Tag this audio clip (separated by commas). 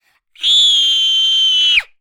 Screaming, Human voice